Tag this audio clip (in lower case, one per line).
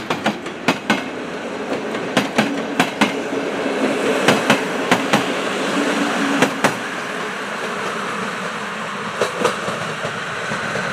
vehicle
train
railroad car